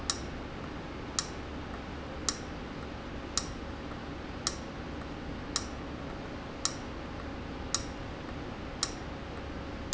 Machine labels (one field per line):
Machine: valve